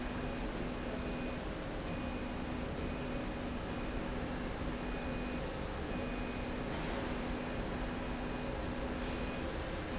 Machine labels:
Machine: slide rail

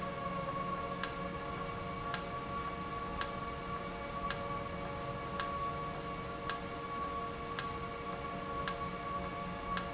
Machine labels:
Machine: valve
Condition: normal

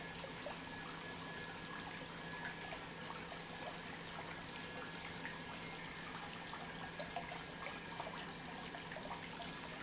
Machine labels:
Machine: pump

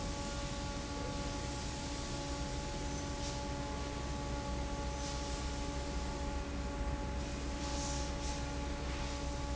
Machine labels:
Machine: fan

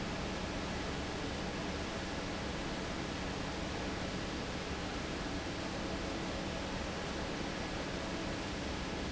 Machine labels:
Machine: fan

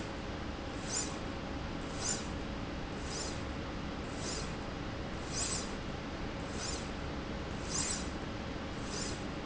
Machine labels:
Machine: slide rail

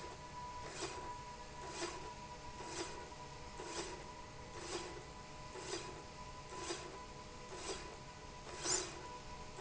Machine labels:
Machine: slide rail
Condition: normal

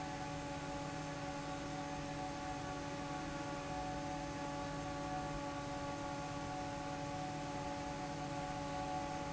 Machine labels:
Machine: fan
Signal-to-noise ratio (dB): 0 dB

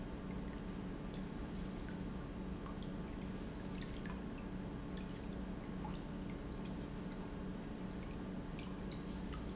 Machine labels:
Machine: pump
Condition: normal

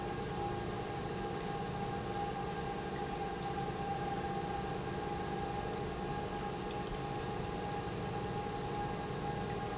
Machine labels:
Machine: pump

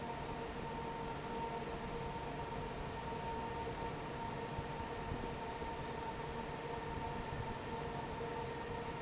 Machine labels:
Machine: fan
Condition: normal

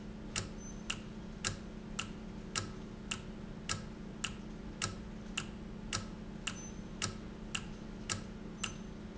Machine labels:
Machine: valve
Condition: normal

